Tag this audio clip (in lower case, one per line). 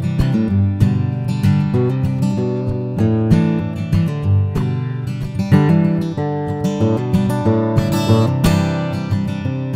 plucked string instrument
acoustic guitar
music
strum
musical instrument